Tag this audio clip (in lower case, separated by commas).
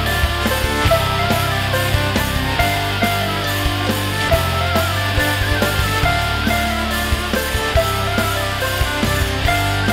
music